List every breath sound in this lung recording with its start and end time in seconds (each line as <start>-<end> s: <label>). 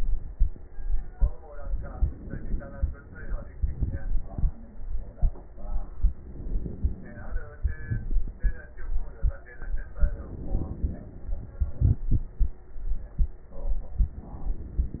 1.59-3.56 s: inhalation
3.57-4.65 s: exhalation
3.57-4.65 s: crackles
6.11-7.50 s: inhalation
7.49-8.76 s: crackles
7.51-8.79 s: exhalation
10.01-11.41 s: inhalation
11.43-12.71 s: exhalation
11.43-12.71 s: crackles